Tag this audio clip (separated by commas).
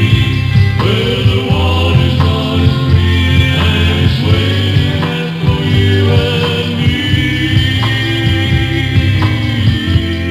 Music